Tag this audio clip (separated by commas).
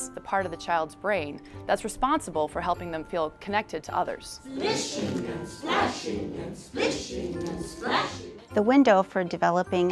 Music, Speech